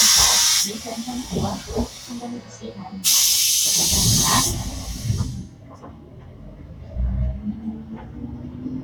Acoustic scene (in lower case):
bus